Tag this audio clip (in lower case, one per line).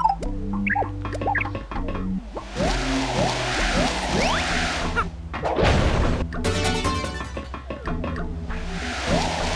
music